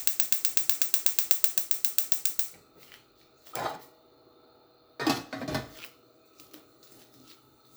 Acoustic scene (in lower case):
kitchen